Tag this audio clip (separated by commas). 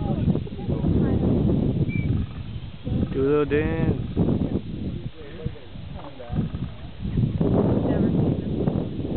Bird, Speech